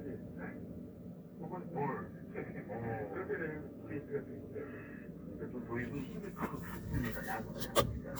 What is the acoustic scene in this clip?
car